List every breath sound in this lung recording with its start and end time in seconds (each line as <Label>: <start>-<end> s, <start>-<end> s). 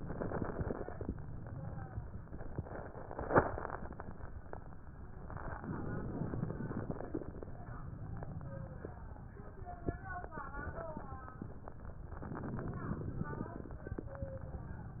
Inhalation: 5.58-7.08 s, 12.24-13.74 s
Crackles: 5.58-7.08 s, 12.24-13.74 s